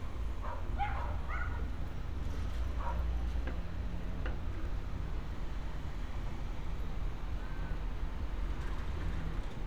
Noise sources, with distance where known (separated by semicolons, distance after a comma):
dog barking or whining